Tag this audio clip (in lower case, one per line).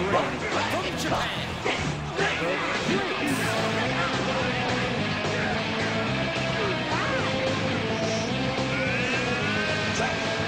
speech
music